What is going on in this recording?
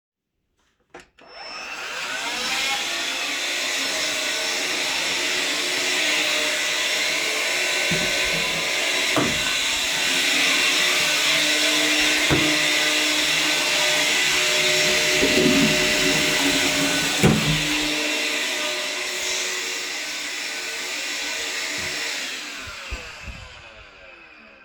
i turn on the vacuum, go into the toilet and flush it.